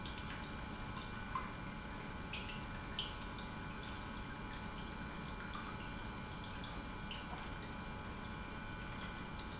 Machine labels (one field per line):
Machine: pump